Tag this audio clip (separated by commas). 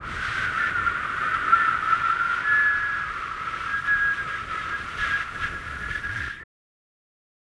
Wind